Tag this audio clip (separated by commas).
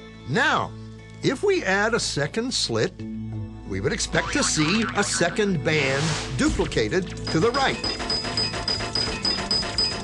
Speech, Music